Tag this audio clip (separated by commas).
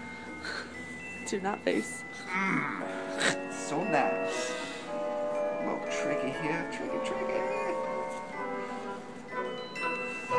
Music, Speech